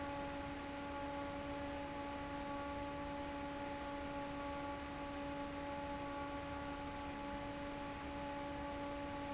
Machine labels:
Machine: fan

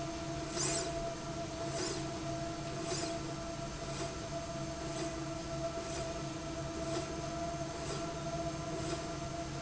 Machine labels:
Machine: slide rail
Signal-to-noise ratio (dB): -6 dB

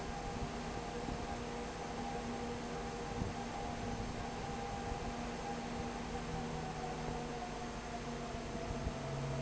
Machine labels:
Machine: fan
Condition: abnormal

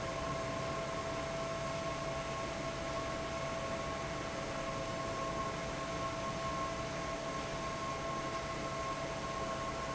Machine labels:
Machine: fan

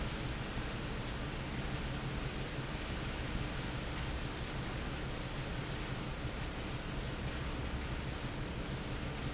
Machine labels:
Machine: fan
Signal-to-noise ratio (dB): -6 dB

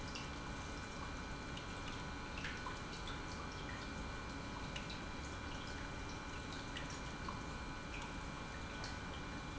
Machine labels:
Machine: pump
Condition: normal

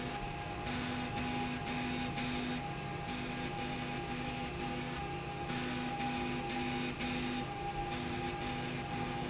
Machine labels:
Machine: slide rail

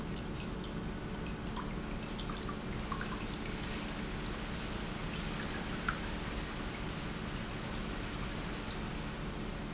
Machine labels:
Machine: pump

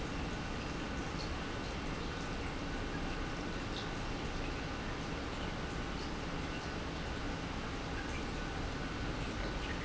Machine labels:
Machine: pump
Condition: normal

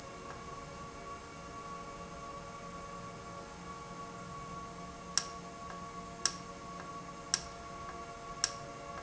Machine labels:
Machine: valve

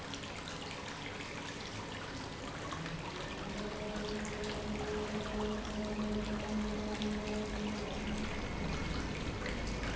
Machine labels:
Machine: pump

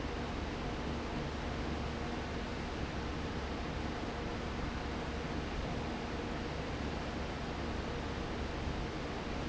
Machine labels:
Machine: fan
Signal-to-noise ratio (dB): -6 dB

